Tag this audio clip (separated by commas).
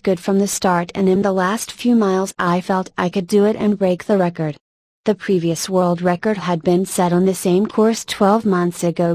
Speech